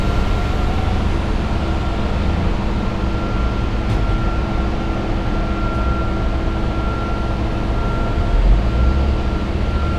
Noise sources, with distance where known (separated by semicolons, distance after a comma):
engine of unclear size